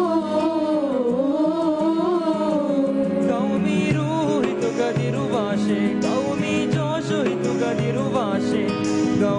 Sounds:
Male singing, Music

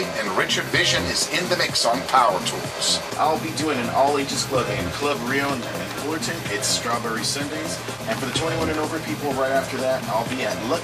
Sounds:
Music, Speech

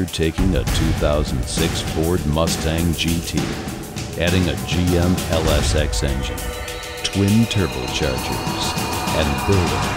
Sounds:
Speech, Music

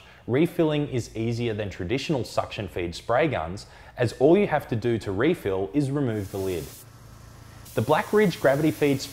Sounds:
Spray, Speech

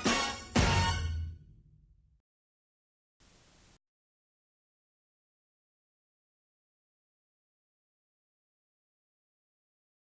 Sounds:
Music

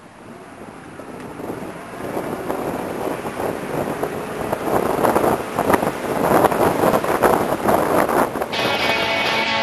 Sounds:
Music, outside, rural or natural

